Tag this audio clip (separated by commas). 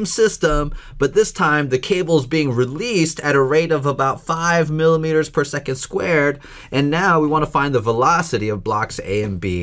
Speech